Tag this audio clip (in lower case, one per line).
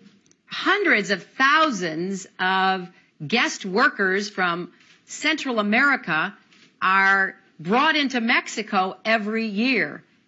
speech